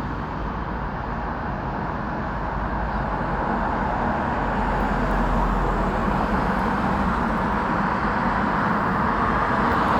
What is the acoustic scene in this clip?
street